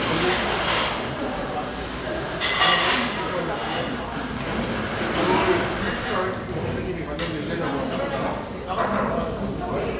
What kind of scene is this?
crowded indoor space